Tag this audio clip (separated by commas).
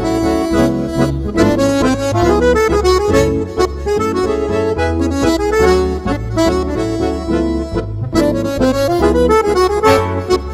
Music